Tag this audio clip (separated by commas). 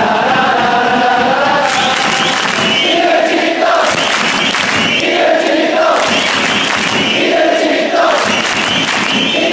people cheering